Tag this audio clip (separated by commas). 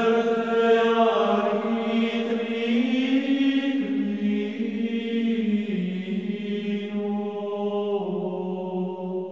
Music